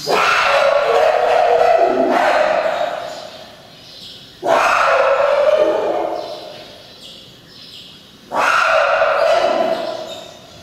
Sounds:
chimpanzee pant-hooting

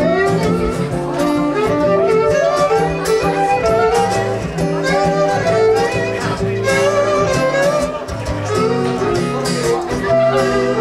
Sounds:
fiddle, Strum, Music, Plucked string instrument, Musical instrument, Guitar, Speech

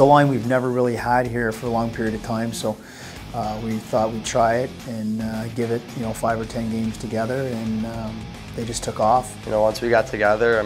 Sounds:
Music, Speech

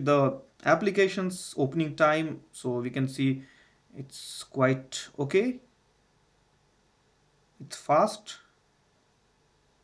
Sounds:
Speech

